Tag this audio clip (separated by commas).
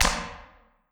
Hands, Clapping